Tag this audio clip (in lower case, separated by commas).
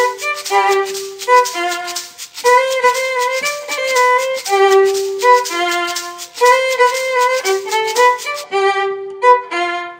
musical instrument, music, fiddle